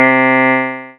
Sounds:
Musical instrument, Piano, Keyboard (musical), Music

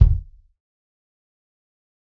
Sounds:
Music, Musical instrument, Drum, Percussion, Bass drum

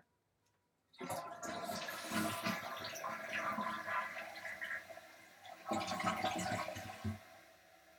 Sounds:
home sounds, Toilet flush

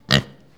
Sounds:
livestock, Animal

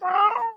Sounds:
Cat, Domestic animals, Animal, Meow

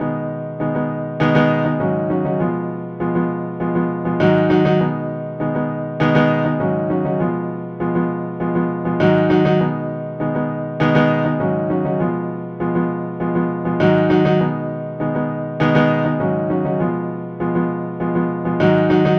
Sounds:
Music, Keyboard (musical), Piano, Musical instrument

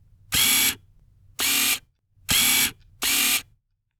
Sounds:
Mechanisms, Camera

